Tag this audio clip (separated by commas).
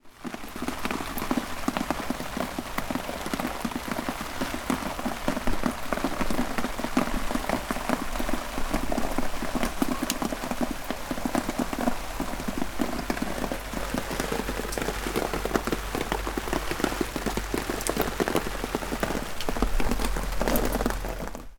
Water, Rain